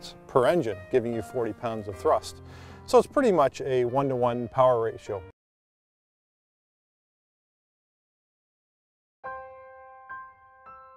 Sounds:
Speech, Music

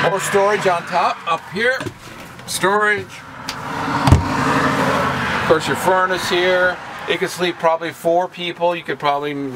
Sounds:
Vehicle, Speech, Car

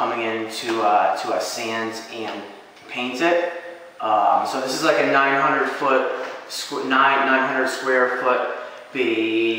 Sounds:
Speech

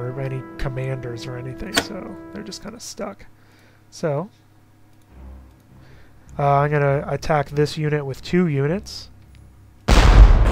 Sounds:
Speech

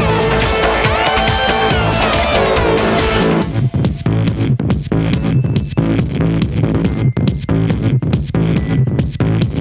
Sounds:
Music

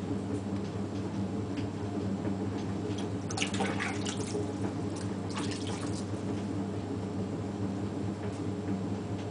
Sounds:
inside a small room, Music

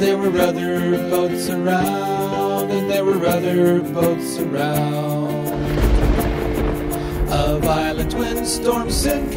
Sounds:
Music for children, Music

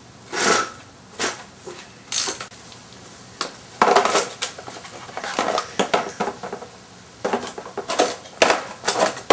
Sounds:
Speech, Tools

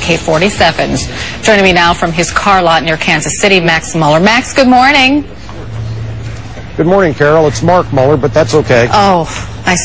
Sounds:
Speech

